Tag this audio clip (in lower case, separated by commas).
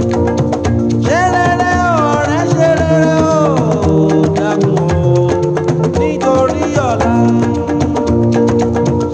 music of africa, music